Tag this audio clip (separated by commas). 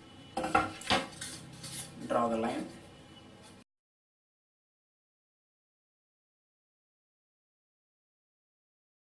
Speech